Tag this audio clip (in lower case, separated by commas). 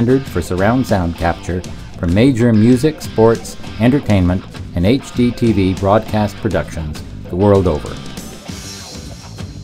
music, speech